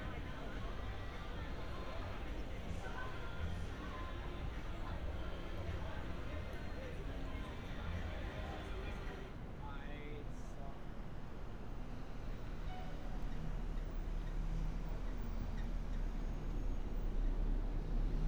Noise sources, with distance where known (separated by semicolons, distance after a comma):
unidentified human voice